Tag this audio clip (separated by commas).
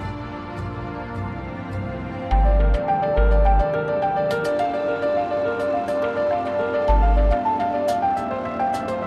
Music, Vehicle